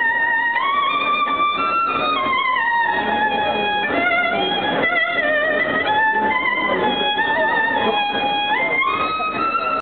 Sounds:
speech, violin, music, musical instrument

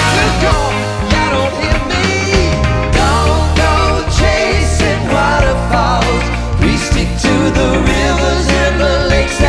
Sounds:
music

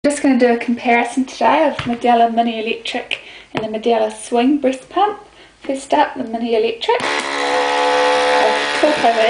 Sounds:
speech

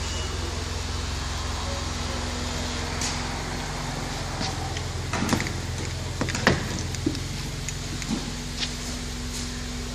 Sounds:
knock, car, speech, vehicle

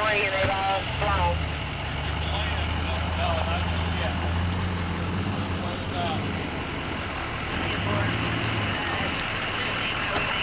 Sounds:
vehicle, speech, car

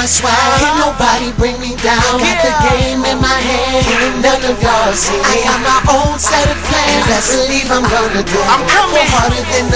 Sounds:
soundtrack music, music

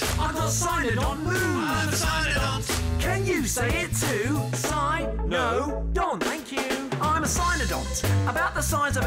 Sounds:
rapping

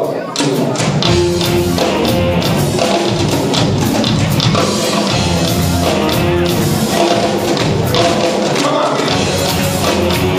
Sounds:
jazz, music, orchestra, speech

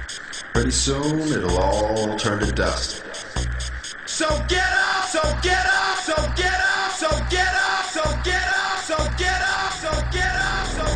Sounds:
sound effect, music

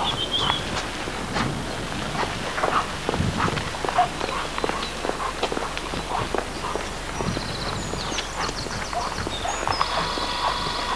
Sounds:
footsteps, animal, dog, domestic animals

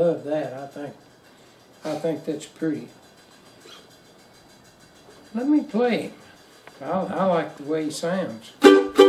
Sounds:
music, mandolin, speech

